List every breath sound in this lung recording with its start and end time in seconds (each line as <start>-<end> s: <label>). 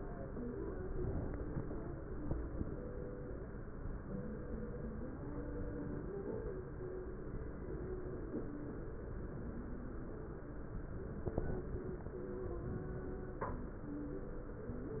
0.80-1.55 s: inhalation
11.34-12.10 s: inhalation